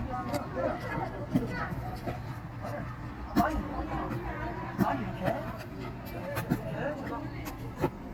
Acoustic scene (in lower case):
park